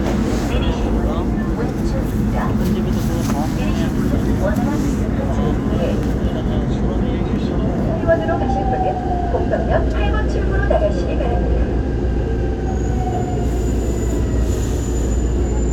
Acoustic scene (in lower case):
subway train